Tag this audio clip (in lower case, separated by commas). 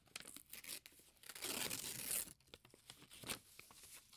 tearing